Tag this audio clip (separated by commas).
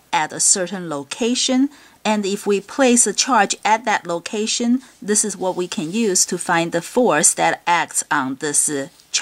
Speech